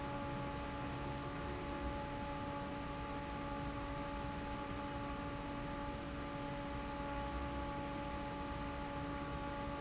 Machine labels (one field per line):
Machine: fan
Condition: normal